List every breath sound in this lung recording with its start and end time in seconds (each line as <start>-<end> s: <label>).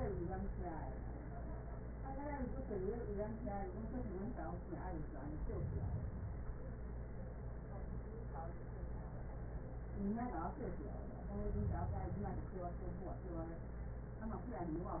5.18-6.63 s: inhalation
11.23-12.49 s: inhalation